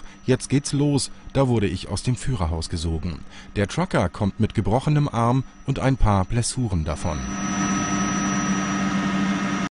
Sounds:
Vehicle, Speech

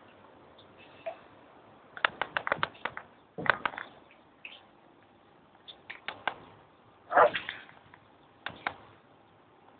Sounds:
Animal

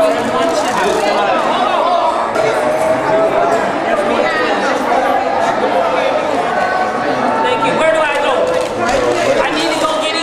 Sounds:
Speech

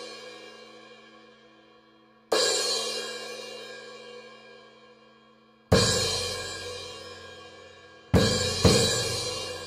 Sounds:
Hi-hat, Musical instrument, Drum kit, Music, Drum

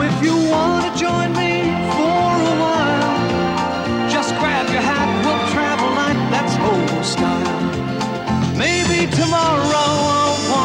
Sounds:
Music

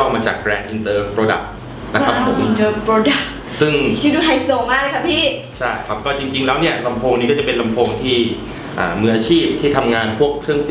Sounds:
Music, Speech

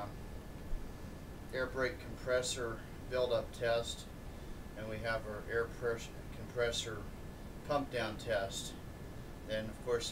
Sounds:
Speech

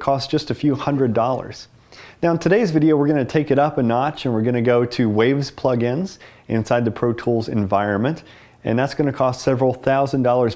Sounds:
Speech

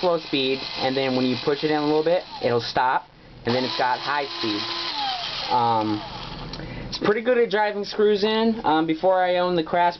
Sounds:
Speech, Tools

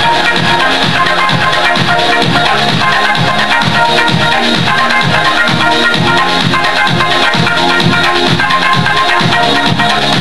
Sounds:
Dance music, Music, Pop music

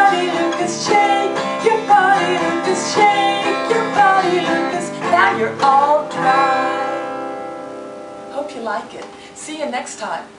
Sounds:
Speech, Music

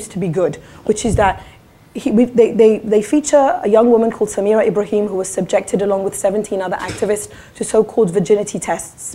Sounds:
Speech

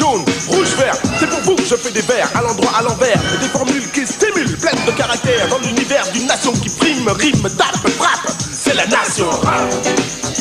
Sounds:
Hip hop music, Rapping, Music

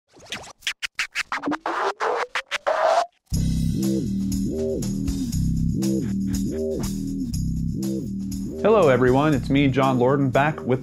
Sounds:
Speech, Music, inside a small room

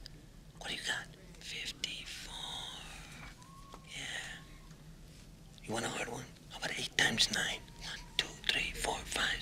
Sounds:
Speech, Whispering, people whispering

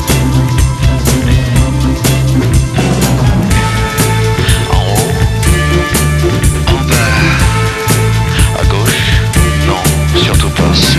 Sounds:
Music

